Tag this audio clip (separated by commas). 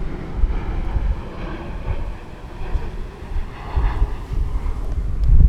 Aircraft, Vehicle, airplane